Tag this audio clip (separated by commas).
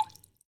Rain, Water, Raindrop